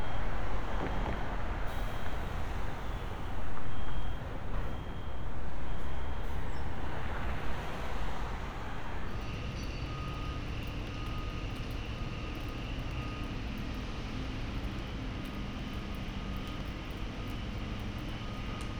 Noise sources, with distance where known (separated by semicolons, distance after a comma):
engine of unclear size, near; reverse beeper